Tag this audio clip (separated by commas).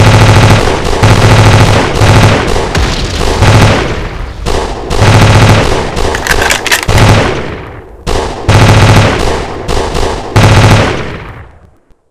Explosion, gunfire